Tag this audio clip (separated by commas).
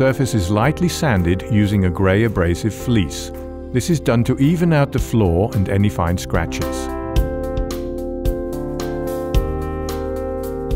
Speech, Music